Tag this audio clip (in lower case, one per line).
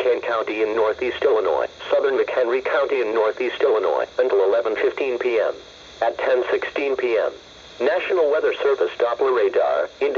radio
speech